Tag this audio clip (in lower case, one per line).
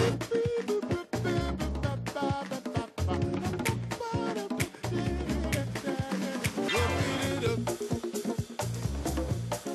music
exciting music